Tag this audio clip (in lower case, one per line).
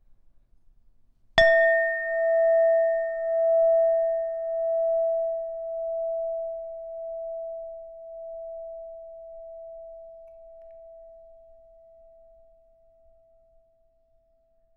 clink
glass